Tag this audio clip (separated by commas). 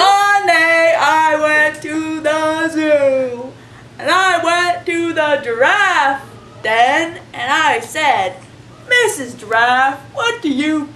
Speech